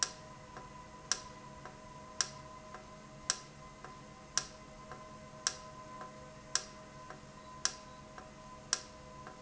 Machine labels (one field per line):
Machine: valve